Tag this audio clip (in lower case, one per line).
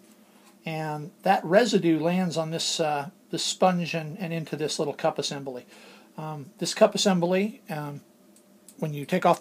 speech